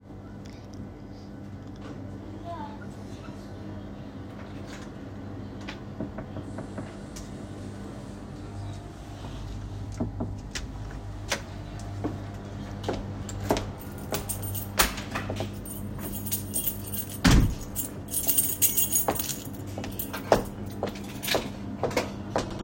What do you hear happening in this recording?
My mother knocked at the door and I opened the door for her. Afterwards she found her key and put it in the key drawer